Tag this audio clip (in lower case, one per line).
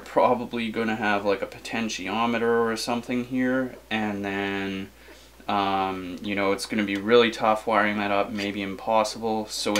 speech